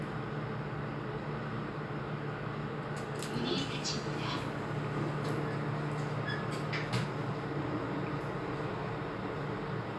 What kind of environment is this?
elevator